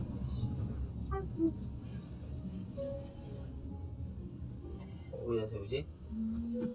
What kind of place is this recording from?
car